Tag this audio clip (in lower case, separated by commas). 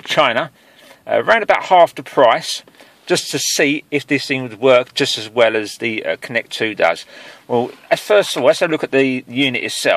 speech